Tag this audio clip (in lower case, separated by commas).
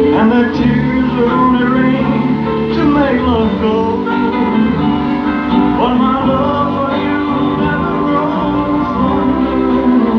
music